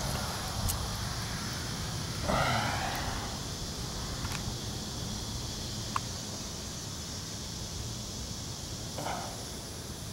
Consistent quiet hissing